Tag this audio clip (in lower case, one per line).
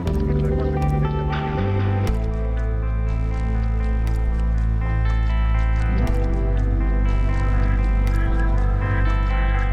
music